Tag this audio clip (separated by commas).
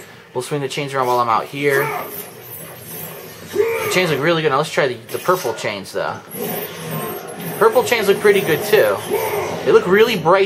Speech